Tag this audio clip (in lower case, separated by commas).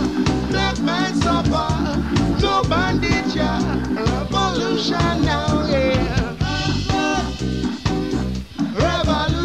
guitar, musical instrument, music